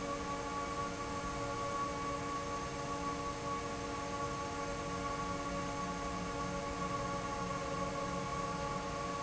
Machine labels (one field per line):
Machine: fan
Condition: normal